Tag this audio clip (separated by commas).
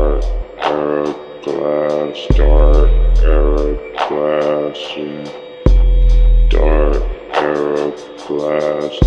Music